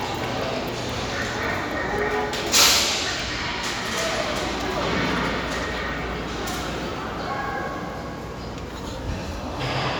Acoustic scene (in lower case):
crowded indoor space